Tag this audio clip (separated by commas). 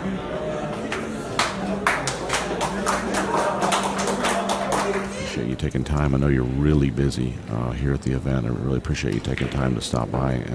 striking pool